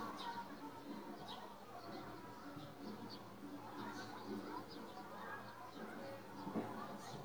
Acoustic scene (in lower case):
residential area